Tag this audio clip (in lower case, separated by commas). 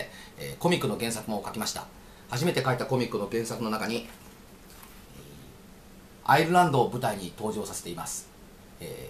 speech, man speaking